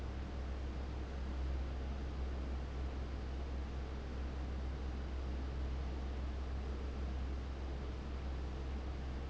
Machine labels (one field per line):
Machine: fan